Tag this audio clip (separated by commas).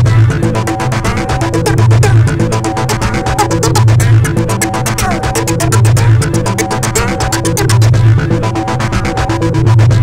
Techno, Trance music, Electronic music, Music